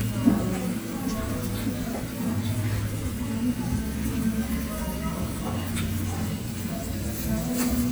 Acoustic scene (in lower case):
restaurant